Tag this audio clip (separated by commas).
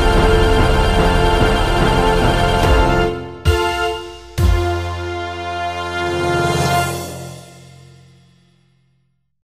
Sound effect, Music